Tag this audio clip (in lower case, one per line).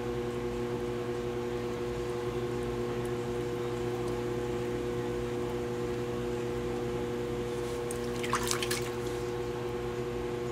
inside a small room
liquid